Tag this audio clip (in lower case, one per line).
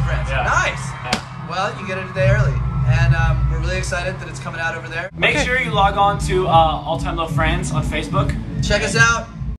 music
speech